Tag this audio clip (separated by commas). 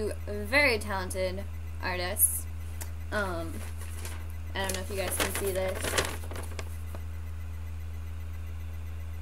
Speech